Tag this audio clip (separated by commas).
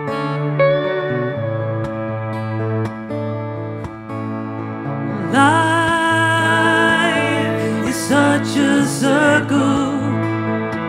Music, inside a large room or hall, Singing